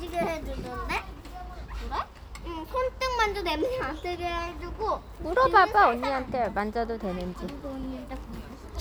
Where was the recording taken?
in a park